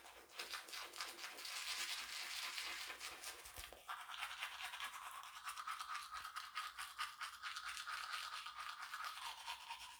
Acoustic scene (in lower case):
restroom